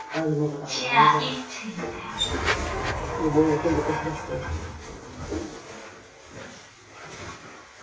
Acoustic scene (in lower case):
elevator